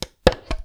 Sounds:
Tools

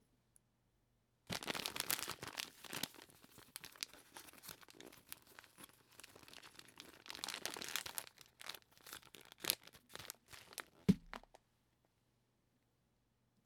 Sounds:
Crumpling

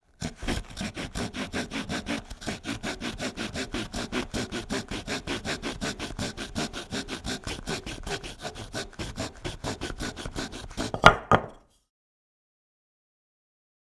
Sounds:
Tools, Sawing

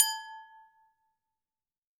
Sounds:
Glass

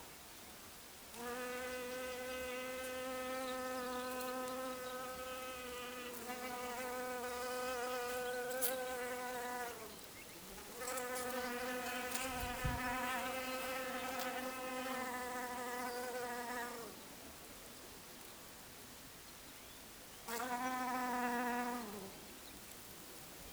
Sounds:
Animal, Buzz, Insect, Wild animals

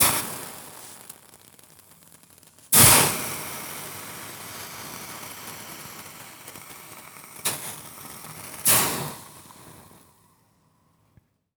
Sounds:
Hiss

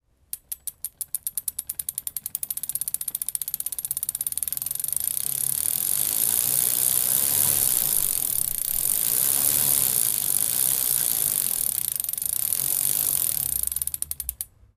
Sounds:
Vehicle, Bicycle

